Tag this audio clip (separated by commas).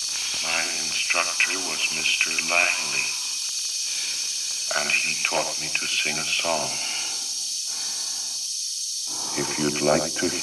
Speech